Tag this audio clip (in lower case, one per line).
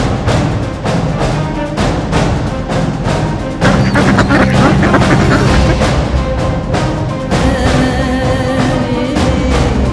music
duck